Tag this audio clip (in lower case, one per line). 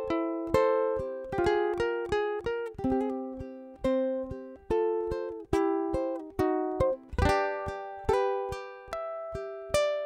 playing ukulele